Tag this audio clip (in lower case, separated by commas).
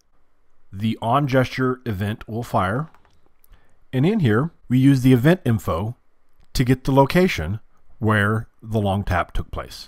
speech